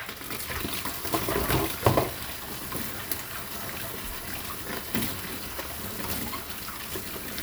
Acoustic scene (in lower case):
kitchen